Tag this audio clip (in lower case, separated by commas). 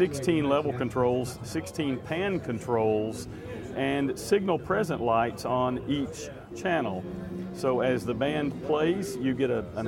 speech, music